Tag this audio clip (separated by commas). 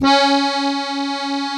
Accordion, Music, Musical instrument